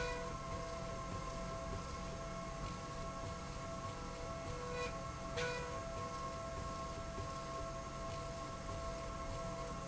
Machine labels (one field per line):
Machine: slide rail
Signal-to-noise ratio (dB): 0 dB